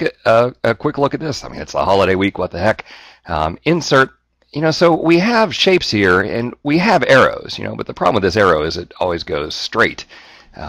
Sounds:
speech

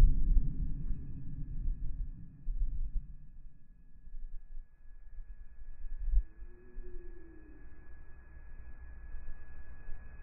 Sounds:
silence

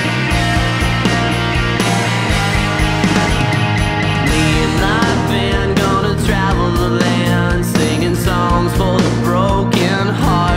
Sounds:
music, exciting music

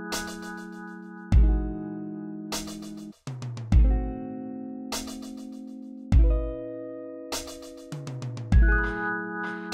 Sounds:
music

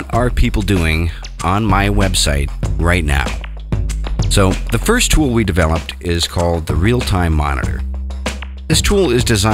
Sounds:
music, speech

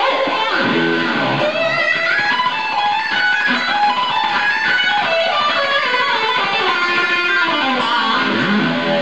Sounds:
music

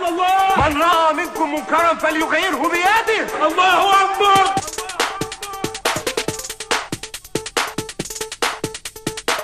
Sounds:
music, techno

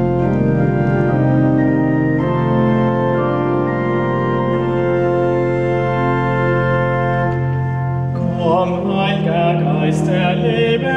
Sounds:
keyboard (musical), piano, musical instrument, music

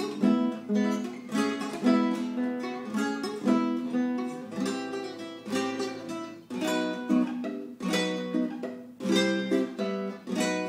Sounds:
guitar, music, plucked string instrument, musical instrument

